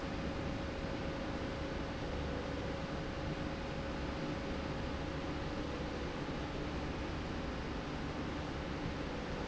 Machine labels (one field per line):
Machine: slide rail